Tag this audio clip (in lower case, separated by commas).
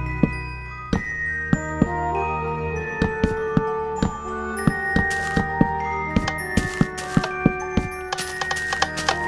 tap, music